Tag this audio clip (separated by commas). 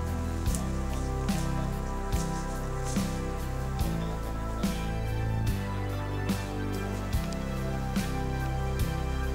Speech, Music